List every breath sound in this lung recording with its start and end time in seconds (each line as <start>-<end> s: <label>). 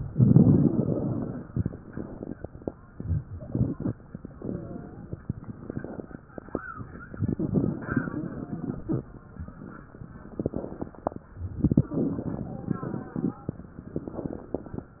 0.07-1.48 s: crackles
1.71-2.60 s: inhalation
3.02-3.91 s: wheeze
4.40-5.05 s: wheeze
5.43-6.28 s: inhalation
7.13-8.88 s: crackles
10.42-11.27 s: inhalation
11.67-13.51 s: crackles